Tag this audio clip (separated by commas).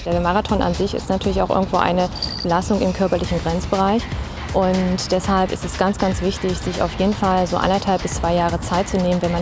outside, rural or natural, Speech, Music